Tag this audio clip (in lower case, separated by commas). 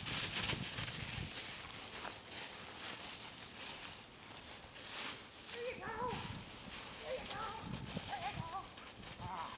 animal, dog